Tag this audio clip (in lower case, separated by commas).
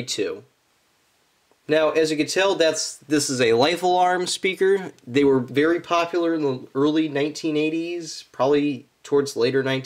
speech